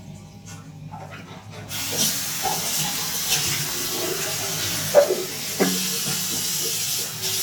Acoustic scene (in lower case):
restroom